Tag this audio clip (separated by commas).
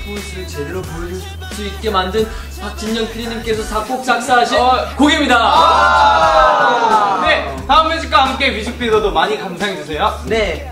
Music, Speech